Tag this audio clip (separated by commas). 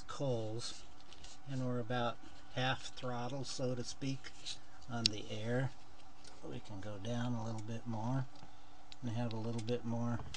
Speech